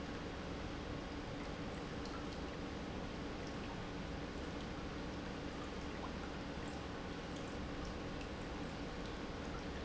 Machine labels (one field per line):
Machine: pump